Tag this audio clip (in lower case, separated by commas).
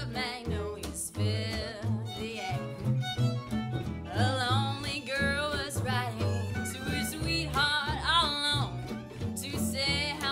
music, bluegrass